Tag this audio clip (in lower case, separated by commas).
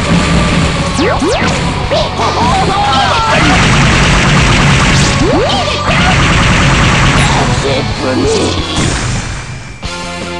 music, speech